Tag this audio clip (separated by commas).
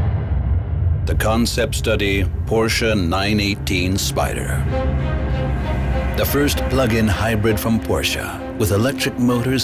Speech, Music